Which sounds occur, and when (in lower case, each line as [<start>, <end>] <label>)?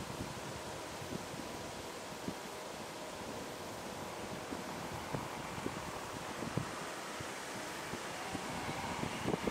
[0.01, 9.50] wind
[0.09, 0.24] wind noise (microphone)
[1.06, 1.12] wind noise (microphone)
[2.21, 2.29] wind noise (microphone)
[5.08, 5.26] wind noise (microphone)
[5.50, 5.95] wind noise (microphone)
[6.23, 6.64] wind noise (microphone)
[7.89, 7.97] wind noise (microphone)
[8.23, 9.50] car
[8.32, 8.36] wind noise (microphone)
[8.64, 9.50] wind noise (microphone)